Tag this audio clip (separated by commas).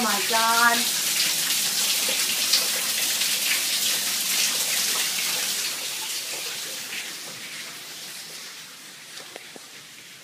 Speech